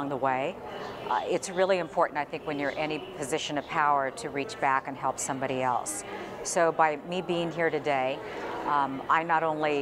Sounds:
speech

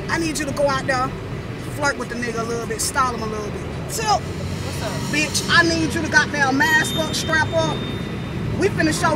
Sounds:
speech

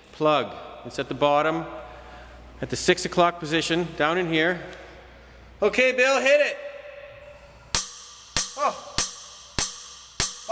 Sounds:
speech

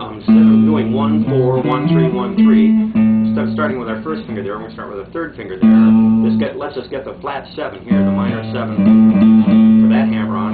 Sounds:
music, guitar, plucked string instrument, speech, musical instrument

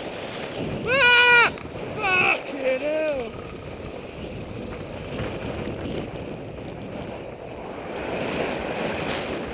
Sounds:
bicycle, car, vehicle

